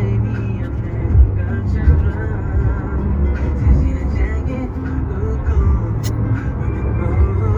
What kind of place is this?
car